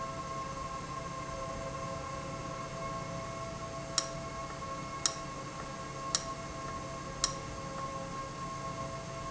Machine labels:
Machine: valve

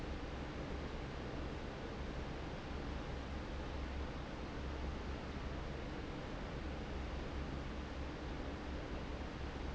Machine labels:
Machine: fan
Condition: normal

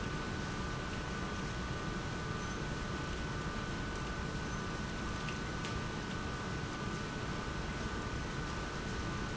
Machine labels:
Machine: pump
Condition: abnormal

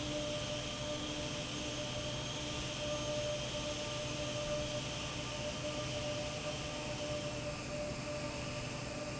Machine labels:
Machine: fan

